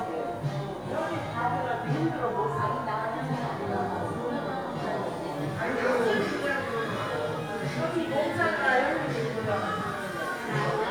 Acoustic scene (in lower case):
crowded indoor space